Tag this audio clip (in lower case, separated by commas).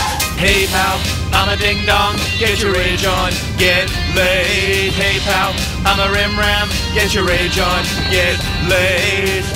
music